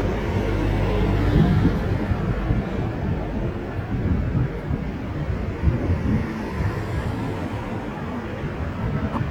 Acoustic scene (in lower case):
street